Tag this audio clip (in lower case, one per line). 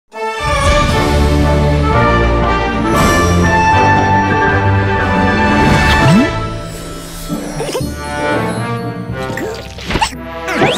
music